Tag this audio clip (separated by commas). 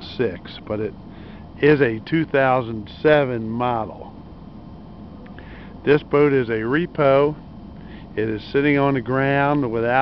Speech